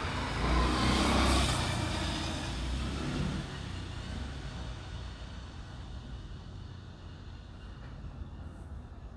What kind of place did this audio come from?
residential area